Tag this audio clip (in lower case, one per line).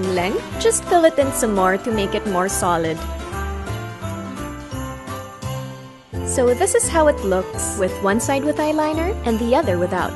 speech
music
inside a small room